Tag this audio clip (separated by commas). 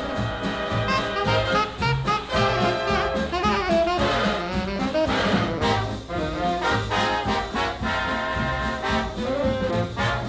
Trombone